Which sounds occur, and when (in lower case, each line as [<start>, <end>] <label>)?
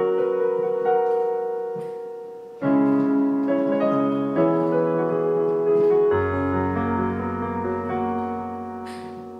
[0.00, 9.35] background noise
[0.00, 9.35] music